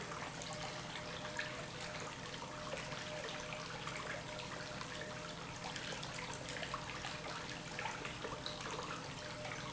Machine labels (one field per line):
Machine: pump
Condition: normal